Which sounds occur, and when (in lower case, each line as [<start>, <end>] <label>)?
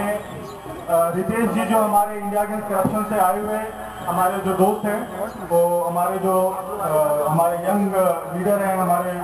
[0.00, 0.25] male speech
[0.00, 9.23] crowd
[0.83, 3.71] male speech
[4.01, 9.23] male speech